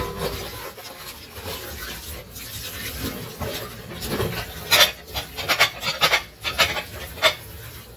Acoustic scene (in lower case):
kitchen